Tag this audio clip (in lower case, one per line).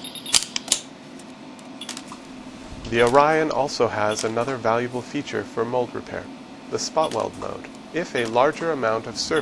arc welding